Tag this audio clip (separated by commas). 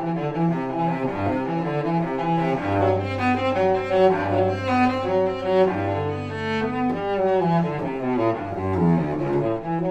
Music, Double bass